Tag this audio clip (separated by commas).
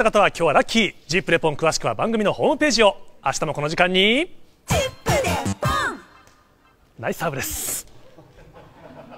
Speech, Music